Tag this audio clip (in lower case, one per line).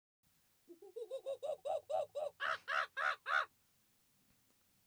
animal